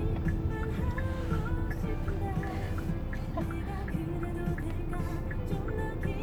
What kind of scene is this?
car